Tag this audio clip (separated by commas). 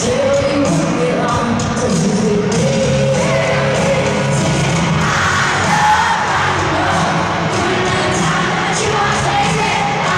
Music, Rock and roll